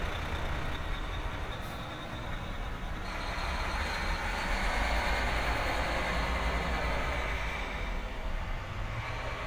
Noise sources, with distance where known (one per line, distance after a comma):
large-sounding engine, near